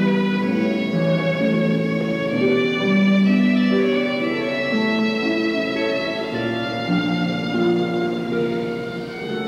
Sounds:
musical instrument, violin, music, pizzicato

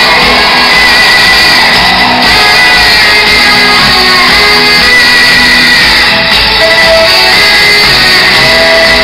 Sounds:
music, rock music

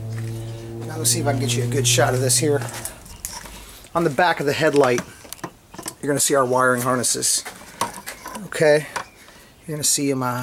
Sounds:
outside, rural or natural, car, speech, vehicle

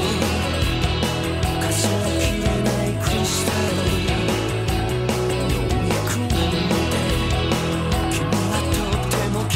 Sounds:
music

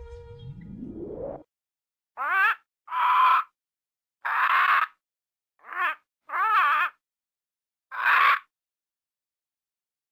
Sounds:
bird squawking

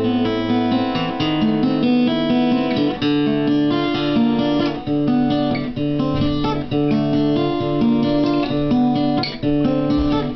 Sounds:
strum, plucked string instrument, music, acoustic guitar, musical instrument, guitar

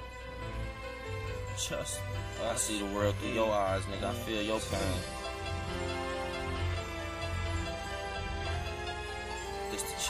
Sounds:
music, speech

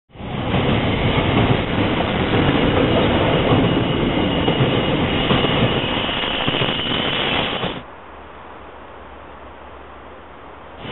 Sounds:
train wheels squealing

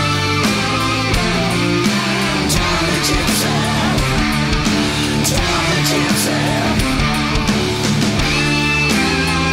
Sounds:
heavy metal, singing

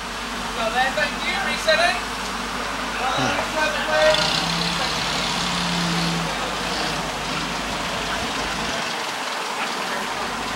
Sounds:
speech, outside, urban or man-made

